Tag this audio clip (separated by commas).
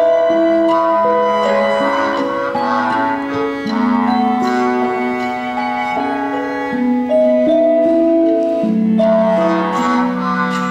Music